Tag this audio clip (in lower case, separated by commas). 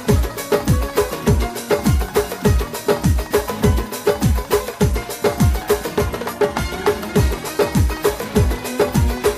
music